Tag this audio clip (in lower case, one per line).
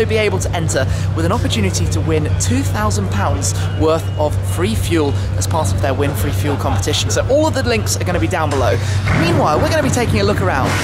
speech